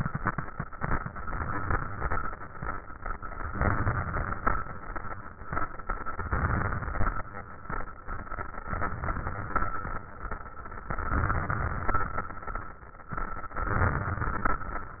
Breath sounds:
Inhalation: 3.47-4.73 s, 6.18-7.26 s, 8.67-9.78 s, 10.92-12.12 s, 13.64-14.84 s

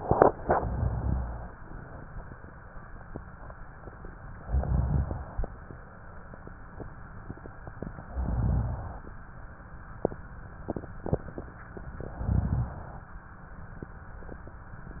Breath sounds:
Inhalation: 0.45-1.56 s, 4.41-5.53 s, 8.02-9.13 s, 12.02-13.14 s

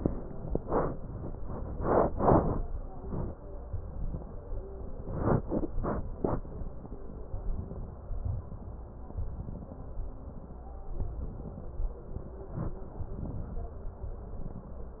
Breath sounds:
Inhalation: 7.32-8.14 s, 9.19-10.00 s, 10.99-11.81 s, 13.10-13.91 s

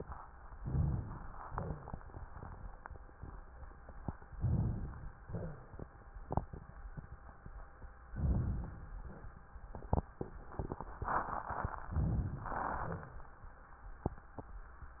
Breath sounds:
Inhalation: 0.59-1.44 s, 4.37-5.25 s, 8.12-8.98 s, 11.89-12.47 s
Exhalation: 1.44-2.66 s, 5.25-6.09 s, 8.98-9.52 s, 12.47-13.33 s
Crackles: 1.44-2.66 s

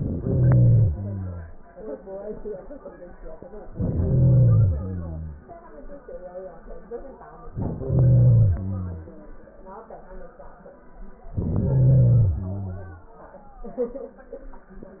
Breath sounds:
Inhalation: 0.00-0.93 s, 3.74-4.76 s, 7.43-8.54 s, 11.38-12.35 s
Exhalation: 0.92-1.75 s, 4.78-5.81 s, 8.56-9.39 s, 12.35-13.17 s

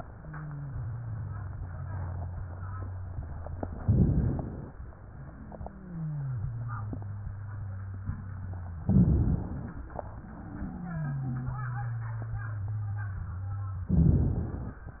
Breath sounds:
Inhalation: 3.79-4.68 s, 8.83-9.72 s, 13.91-14.80 s
Wheeze: 0.00-3.77 s, 4.76-8.81 s, 9.80-13.85 s
Crackles: 3.79-4.68 s, 8.83-9.72 s, 13.91-14.80 s

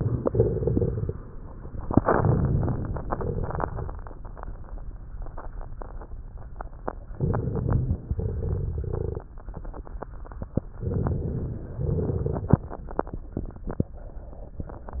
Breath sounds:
Inhalation: 1.97-3.00 s, 7.13-8.05 s, 10.80-11.71 s
Exhalation: 3.07-3.70 s, 8.10-9.28 s, 11.84-12.77 s
Crackles: 1.97-3.00 s, 3.07-3.70 s, 7.13-8.05 s, 8.10-9.28 s, 10.80-11.71 s, 11.84-12.77 s

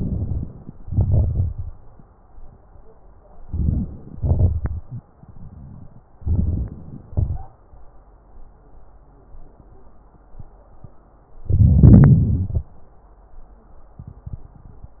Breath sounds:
Inhalation: 0.00-0.50 s, 3.47-4.17 s, 6.21-7.01 s, 11.47-11.77 s
Exhalation: 0.80-1.69 s, 4.20-5.05 s, 7.08-7.57 s, 11.75-12.72 s
Wheeze: 4.84-5.05 s
Crackles: 0.80-1.69 s, 6.21-7.01 s, 11.75-12.72 s

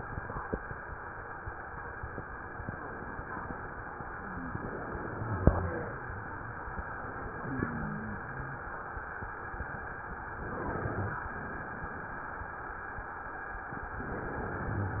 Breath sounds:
Inhalation: 4.16-6.15 s, 10.38-11.31 s, 13.87-15.00 s
Exhalation: 7.36-8.69 s
Wheeze: 7.40-8.67 s

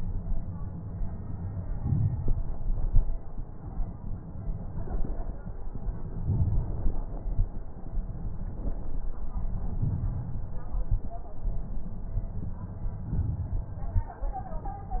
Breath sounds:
Inhalation: 1.77-2.81 s, 6.10-6.91 s, 9.80-10.53 s, 13.11-13.81 s
Exhalation: 2.87-3.32 s, 7.11-7.60 s, 10.85-11.13 s, 13.89-14.21 s
Crackles: 1.75-2.75 s, 2.87-3.32 s, 6.10-6.91 s, 7.11-7.60 s, 9.80-10.51 s, 10.85-11.13 s, 13.11-13.81 s, 13.89-14.21 s

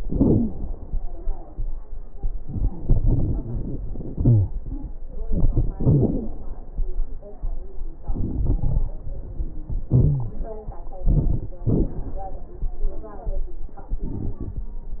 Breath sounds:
Inhalation: 2.48-3.84 s, 5.11-5.74 s, 8.08-8.93 s, 11.05-11.51 s, 13.95-14.74 s
Exhalation: 0.00-0.50 s, 4.13-4.55 s, 5.77-6.40 s, 9.92-10.38 s, 11.67-12.13 s
Wheeze: 0.00-0.50 s, 4.13-4.55 s, 5.77-6.40 s, 9.92-10.38 s
Crackles: 2.48-3.84 s, 5.11-5.74 s, 8.08-8.93 s, 11.05-11.51 s, 11.67-12.13 s, 13.95-14.74 s

